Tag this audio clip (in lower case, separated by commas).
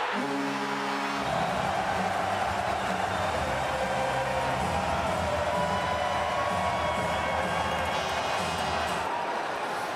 playing hockey